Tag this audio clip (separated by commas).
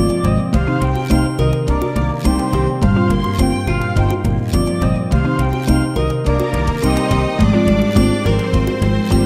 Music